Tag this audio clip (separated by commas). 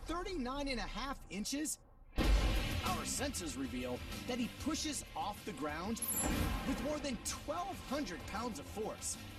bouncing on trampoline